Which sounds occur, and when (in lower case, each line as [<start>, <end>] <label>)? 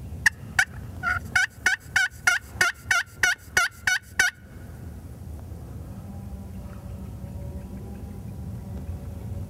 [0.00, 9.45] vehicle
[0.17, 0.29] gobble
[0.52, 0.64] gobble
[1.00, 1.13] gobble
[1.31, 1.43] gobble
[1.59, 1.73] gobble
[1.89, 2.03] gobble
[2.23, 2.35] gobble
[2.53, 2.67] gobble
[2.84, 3.00] gobble
[3.17, 3.31] gobble
[3.51, 3.65] gobble
[3.81, 3.96] gobble
[4.13, 4.25] gobble
[6.51, 9.45] animal